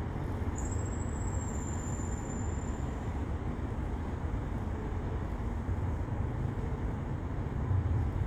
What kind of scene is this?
residential area